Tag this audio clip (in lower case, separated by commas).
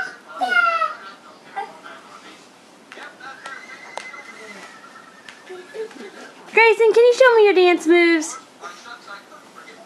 speech, child speech